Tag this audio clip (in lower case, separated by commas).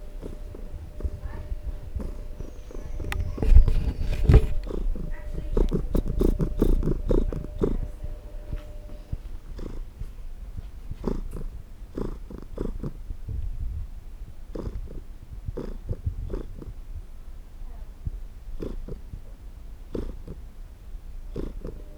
cat, animal, purr, domestic animals